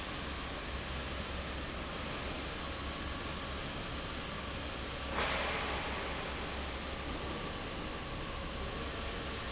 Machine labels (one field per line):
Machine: fan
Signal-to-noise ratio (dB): -6 dB